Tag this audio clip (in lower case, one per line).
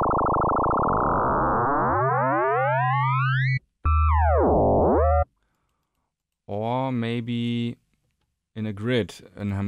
speech
synthesizer